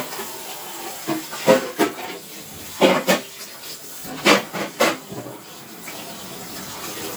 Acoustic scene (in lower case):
kitchen